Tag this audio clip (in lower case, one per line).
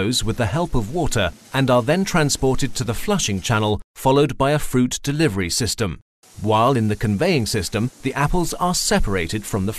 speech synthesizer